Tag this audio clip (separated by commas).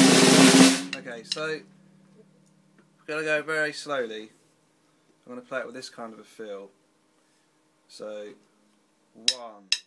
Musical instrument, Roll, Music, Drum, Speech